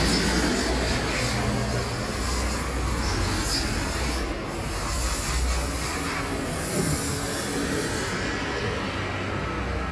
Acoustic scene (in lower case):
street